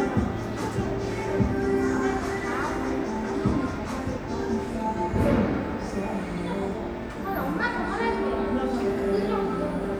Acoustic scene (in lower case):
cafe